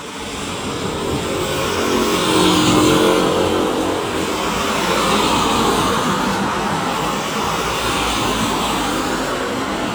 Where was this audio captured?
on a street